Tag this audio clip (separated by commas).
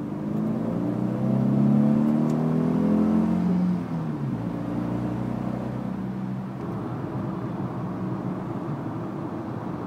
Accelerating, Vehicle, Car